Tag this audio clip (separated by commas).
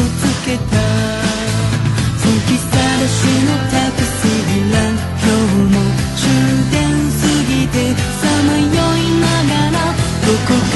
Music